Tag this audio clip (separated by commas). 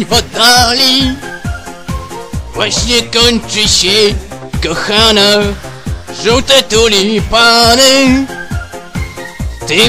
Music